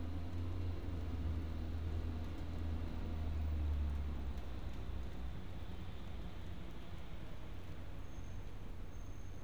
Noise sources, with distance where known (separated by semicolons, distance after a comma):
engine of unclear size